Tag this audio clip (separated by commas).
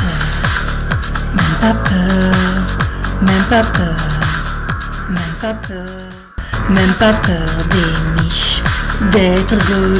Music